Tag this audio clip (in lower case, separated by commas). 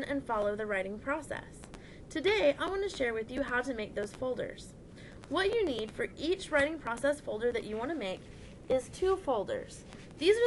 speech